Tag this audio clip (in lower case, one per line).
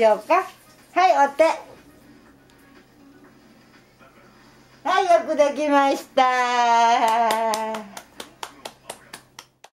speech